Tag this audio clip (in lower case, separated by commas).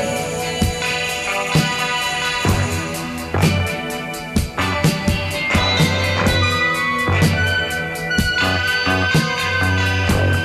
music